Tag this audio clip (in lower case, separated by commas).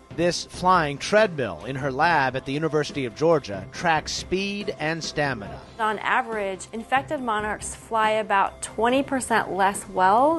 speech, music